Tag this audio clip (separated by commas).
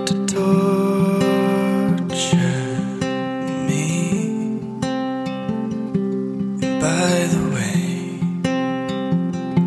Music